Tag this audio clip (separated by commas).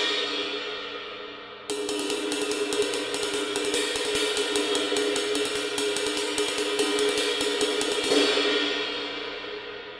Music, Hi-hat, Musical instrument